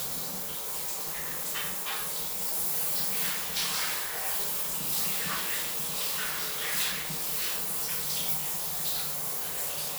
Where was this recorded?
in a restroom